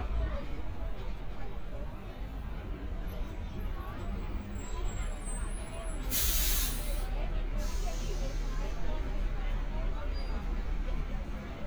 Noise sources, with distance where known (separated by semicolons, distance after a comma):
large-sounding engine, near; person or small group talking